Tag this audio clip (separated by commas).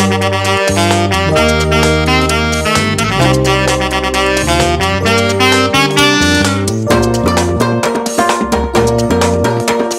Saxophone, Music